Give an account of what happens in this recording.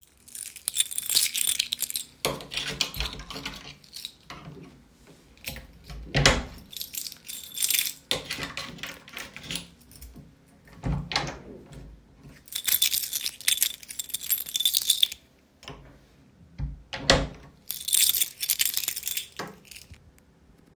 I put the key in the keyhole, unlocked, and opened the kitchen door, then closed and locked it. The key jingling and door sounds are clearly audible.